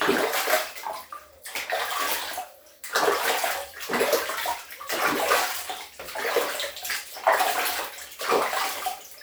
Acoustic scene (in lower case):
restroom